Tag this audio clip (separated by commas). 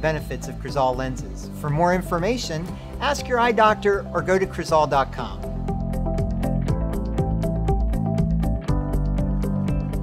Speech, Music